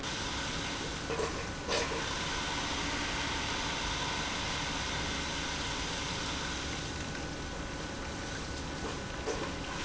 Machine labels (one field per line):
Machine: pump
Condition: abnormal